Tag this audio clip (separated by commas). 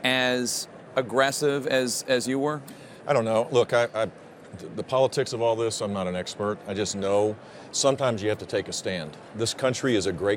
Speech